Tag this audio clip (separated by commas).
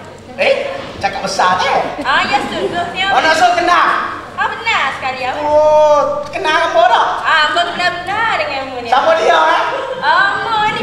Speech